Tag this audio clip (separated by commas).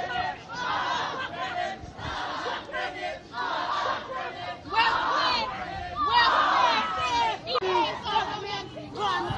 Speech, outside, urban or man-made